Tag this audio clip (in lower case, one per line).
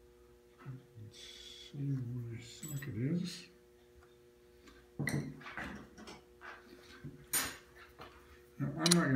speech